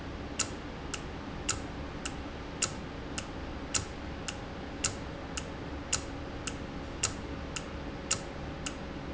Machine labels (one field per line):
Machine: valve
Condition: normal